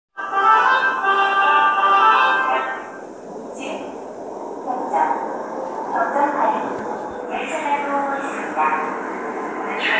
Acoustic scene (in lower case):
subway station